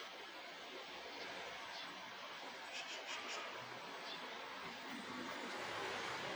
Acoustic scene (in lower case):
park